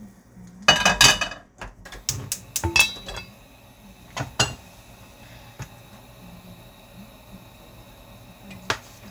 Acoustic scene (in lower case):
kitchen